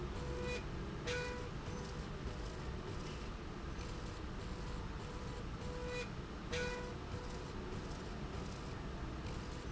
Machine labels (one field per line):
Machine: slide rail